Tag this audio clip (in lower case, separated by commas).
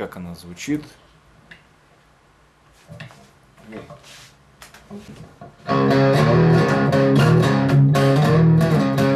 electric guitar, musical instrument, strum, speech, bass guitar, music, blues, guitar